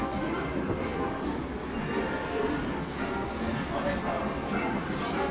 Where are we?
in a cafe